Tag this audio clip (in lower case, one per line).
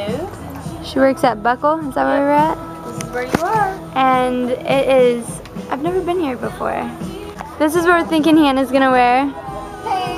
speech
music